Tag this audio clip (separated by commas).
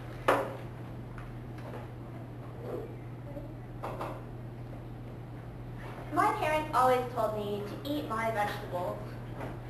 Female speech, Narration, Speech